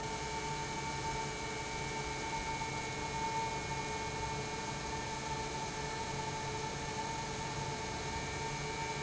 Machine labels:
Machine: pump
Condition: normal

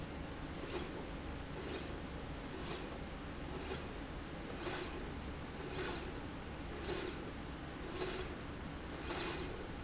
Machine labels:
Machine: slide rail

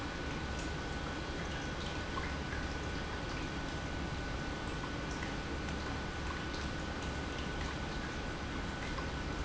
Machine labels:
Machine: pump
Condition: normal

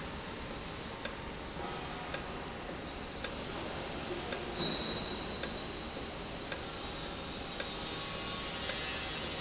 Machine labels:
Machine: valve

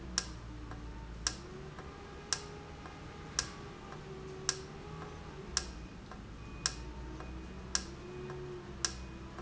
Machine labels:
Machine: valve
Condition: normal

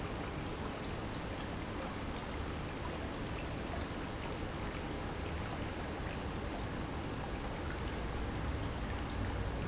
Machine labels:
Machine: pump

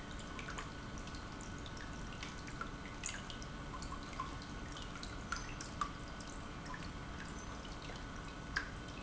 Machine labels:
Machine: pump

